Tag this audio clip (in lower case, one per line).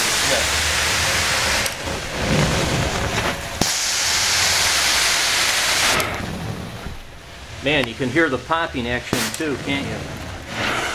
white noise